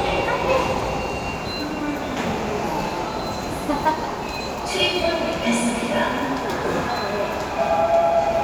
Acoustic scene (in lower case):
subway station